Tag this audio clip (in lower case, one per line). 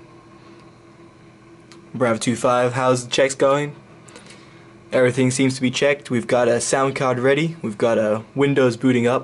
speech